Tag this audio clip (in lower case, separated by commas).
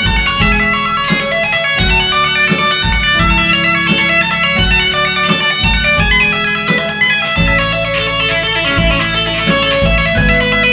electric guitar, music